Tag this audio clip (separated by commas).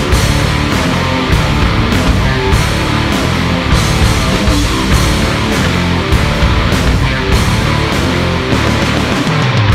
Music, Heavy metal